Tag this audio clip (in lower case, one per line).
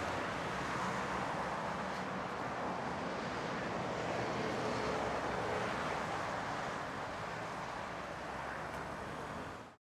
vehicle